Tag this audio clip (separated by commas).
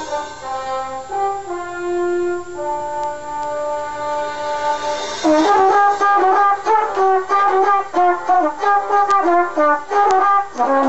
Musical instrument, Trumpet, Music